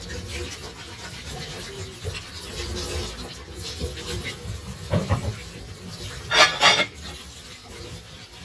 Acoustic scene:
kitchen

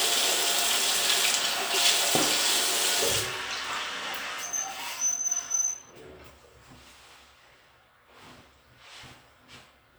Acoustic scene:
restroom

